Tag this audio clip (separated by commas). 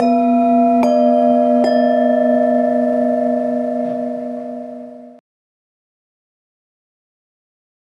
Bell